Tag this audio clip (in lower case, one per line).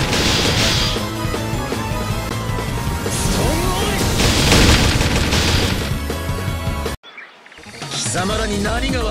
music
speech